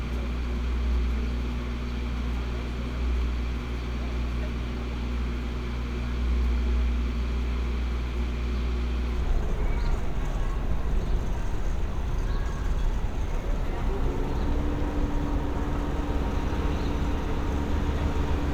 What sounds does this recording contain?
engine of unclear size